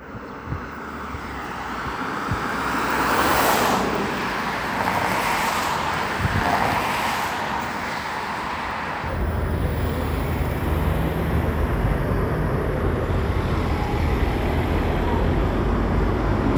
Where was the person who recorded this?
on a street